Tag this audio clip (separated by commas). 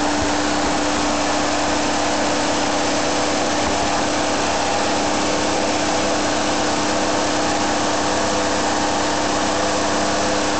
Vehicle, Idling